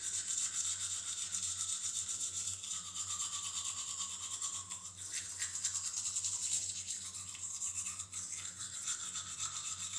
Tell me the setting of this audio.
restroom